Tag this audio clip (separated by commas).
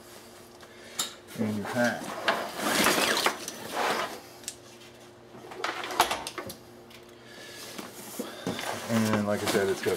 Speech, inside a small room